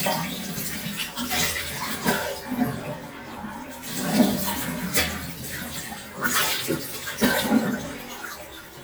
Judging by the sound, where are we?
in a restroom